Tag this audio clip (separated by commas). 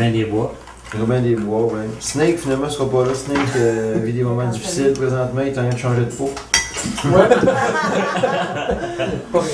Speech